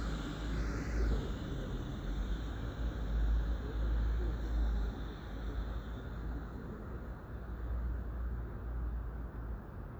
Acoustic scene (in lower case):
residential area